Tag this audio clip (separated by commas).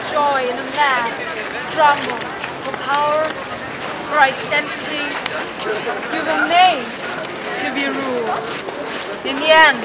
Speech, Female speech